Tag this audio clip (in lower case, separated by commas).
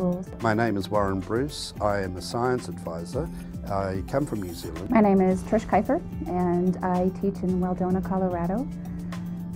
speech, music